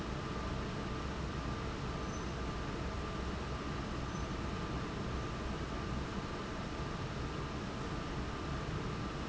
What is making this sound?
fan